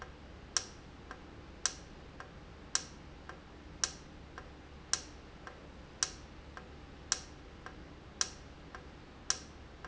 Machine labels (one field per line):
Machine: valve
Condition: normal